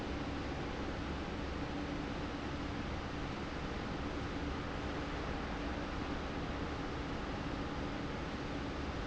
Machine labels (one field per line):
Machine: fan